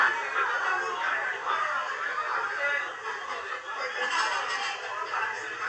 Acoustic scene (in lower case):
crowded indoor space